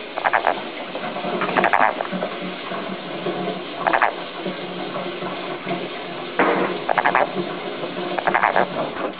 A frog croaking intermittently